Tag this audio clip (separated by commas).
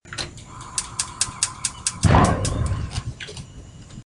Fire